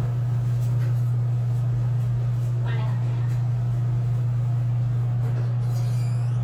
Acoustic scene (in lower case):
elevator